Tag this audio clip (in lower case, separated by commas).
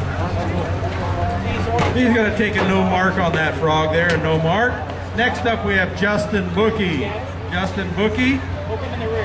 speech